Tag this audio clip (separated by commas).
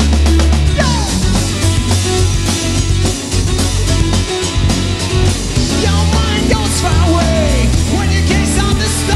Progressive rock, Music